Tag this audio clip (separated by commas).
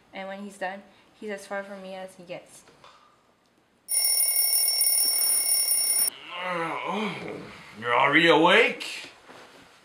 Speech